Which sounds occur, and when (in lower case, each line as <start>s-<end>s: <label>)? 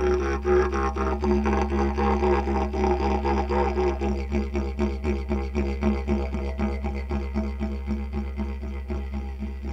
0.0s-9.7s: music